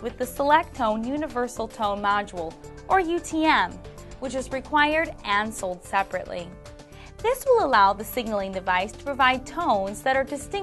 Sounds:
speech, music

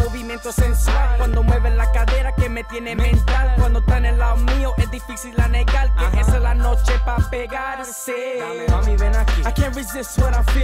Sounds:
funk, music

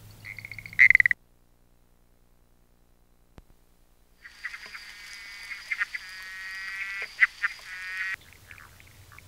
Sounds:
frog croaking

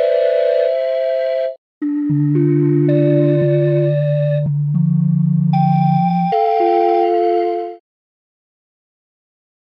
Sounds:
flute, music

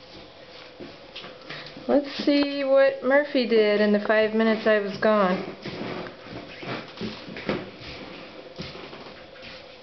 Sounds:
speech

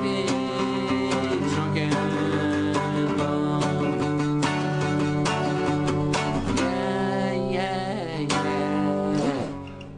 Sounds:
rock music, music, country, musical instrument, punk rock

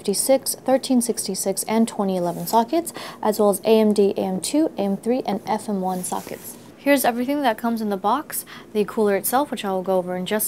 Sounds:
speech

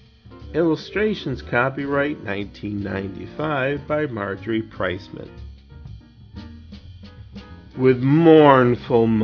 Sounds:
speech, musical instrument, music

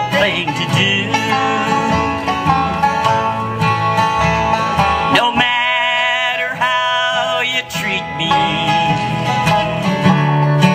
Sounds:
country, music

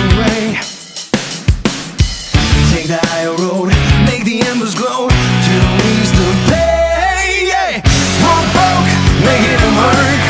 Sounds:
music

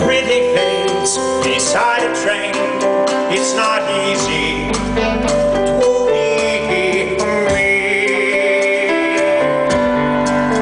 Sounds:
male singing, music

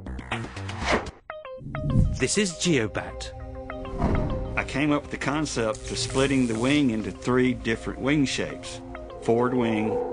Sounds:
music, speech

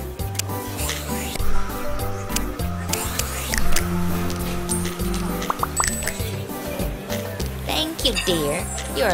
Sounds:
music, speech

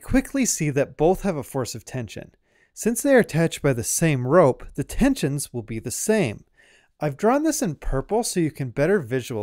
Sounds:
speech

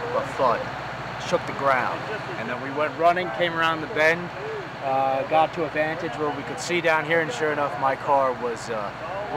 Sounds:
vehicle, speech

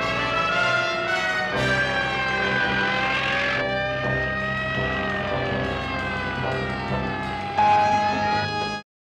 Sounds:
emergency vehicle, truck, music, fire engine, vehicle

